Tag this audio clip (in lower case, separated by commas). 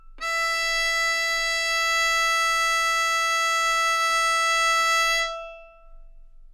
bowed string instrument, music, musical instrument